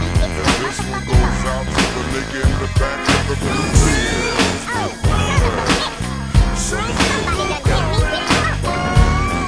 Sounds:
speech, music, hip hop music

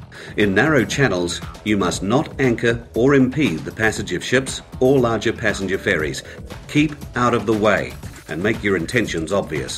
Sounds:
speech, music

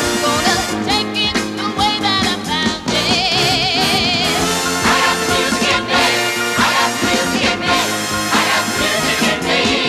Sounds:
music, dance music, exciting music, rhythm and blues

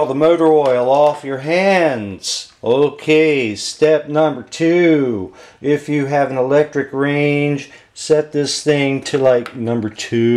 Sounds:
speech

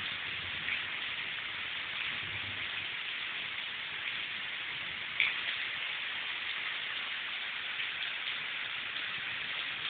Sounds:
rain on surface, raindrop

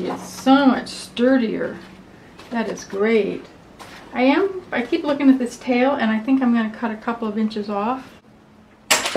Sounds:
speech

